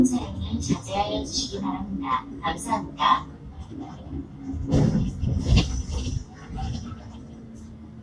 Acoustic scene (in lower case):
bus